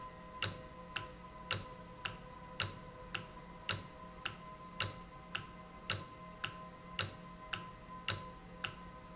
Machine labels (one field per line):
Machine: valve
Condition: normal